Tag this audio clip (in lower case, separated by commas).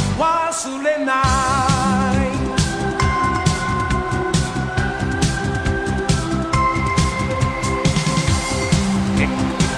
music